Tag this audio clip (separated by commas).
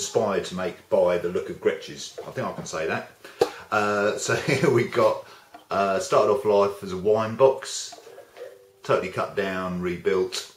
Speech